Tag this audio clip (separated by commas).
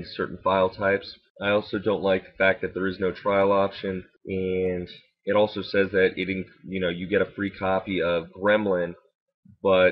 Speech